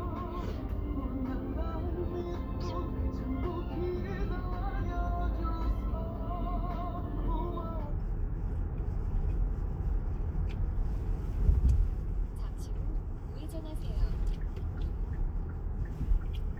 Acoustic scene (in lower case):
car